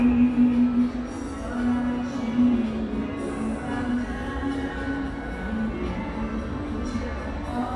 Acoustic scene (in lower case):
subway station